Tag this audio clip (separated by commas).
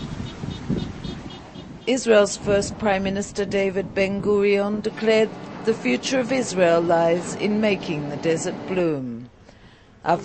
outside, rural or natural, Speech